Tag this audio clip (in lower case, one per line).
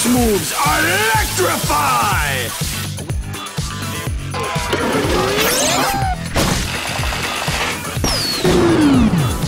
sizzle